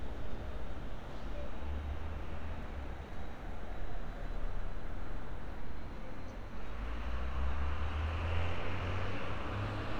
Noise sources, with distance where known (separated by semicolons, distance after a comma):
engine of unclear size